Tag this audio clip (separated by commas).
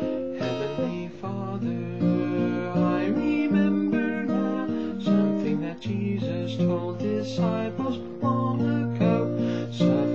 Plucked string instrument, Music, Strum, Guitar, Musical instrument